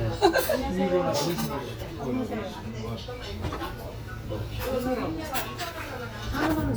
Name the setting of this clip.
restaurant